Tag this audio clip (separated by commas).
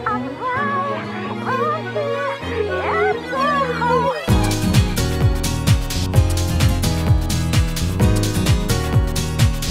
Music